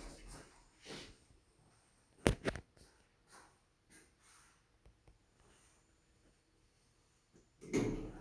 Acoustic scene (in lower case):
elevator